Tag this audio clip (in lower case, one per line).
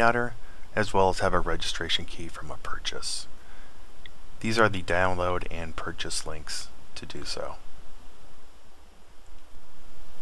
speech